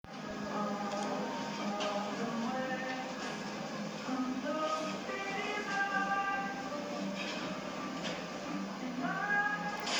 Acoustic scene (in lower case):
cafe